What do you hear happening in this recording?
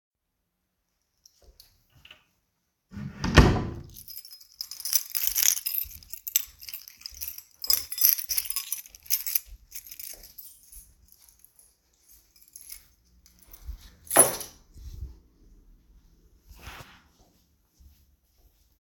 I walked down the hallway while holding a keychain. The keys jingle while I walk. I then opened and closed a door before continuing to walk briefly.